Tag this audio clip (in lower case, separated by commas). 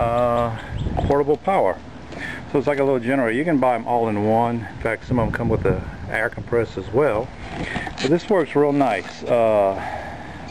speech, outside, rural or natural